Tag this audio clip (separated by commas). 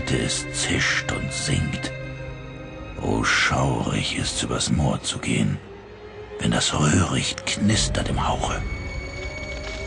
Speech, Music